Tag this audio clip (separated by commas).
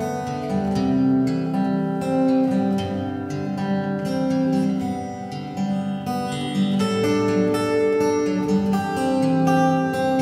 Music, Plucked string instrument, Strum, Guitar, Acoustic guitar, Musical instrument